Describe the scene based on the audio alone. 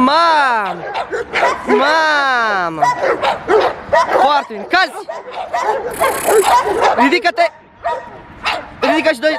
An adult male is speaking, and dogs are barking